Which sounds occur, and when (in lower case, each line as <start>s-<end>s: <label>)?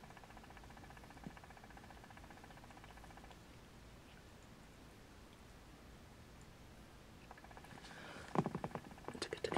0.0s-3.3s: mechanisms
0.0s-9.5s: background noise
1.2s-1.3s: tap
1.7s-2.3s: speech
4.0s-4.2s: generic impact sounds
4.4s-4.4s: clicking
5.2s-5.4s: clicking
6.3s-6.4s: clicking
7.3s-9.5s: mechanisms
7.8s-8.3s: breathing
8.3s-8.8s: generic impact sounds